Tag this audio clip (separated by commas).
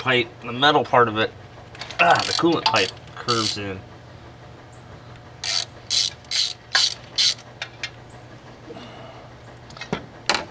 Gears, Ratchet, Mechanisms